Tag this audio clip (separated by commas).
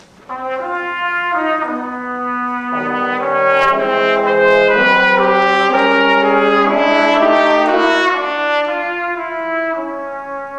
Trombone, Music, Brass instrument